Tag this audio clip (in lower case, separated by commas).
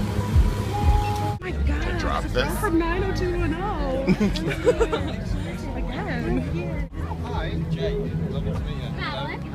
speech, music